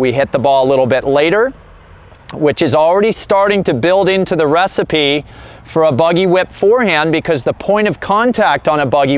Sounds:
speech

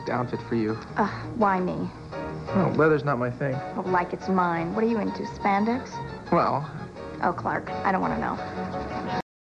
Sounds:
music, speech

